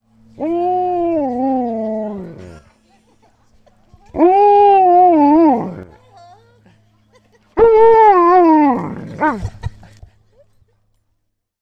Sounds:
Animal, Dog, Domestic animals

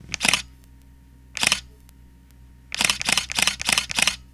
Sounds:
Camera, Mechanisms

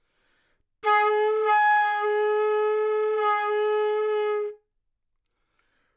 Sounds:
Music, Musical instrument, woodwind instrument

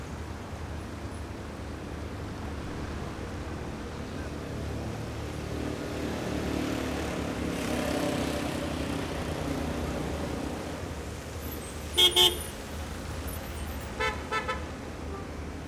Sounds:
Motor vehicle (road), Vehicle

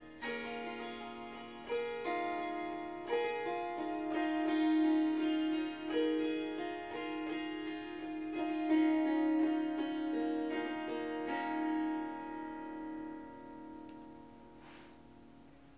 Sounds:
Music, Harp, Musical instrument

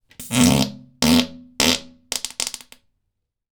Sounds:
Fart

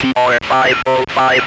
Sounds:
Human voice, Speech

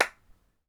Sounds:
Hands, Clapping

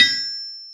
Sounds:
Tools

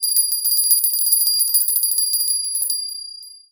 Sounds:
Bell

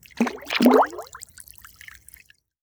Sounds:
splatter, Water, Liquid

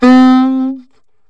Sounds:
Music, Wind instrument, Musical instrument

